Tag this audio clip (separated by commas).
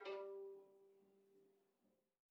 Music, Musical instrument, Bowed string instrument